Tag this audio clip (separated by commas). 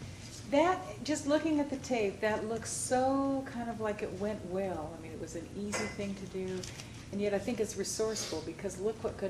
woman speaking, Speech